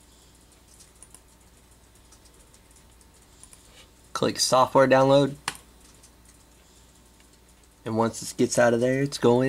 Someone uses a computer and talking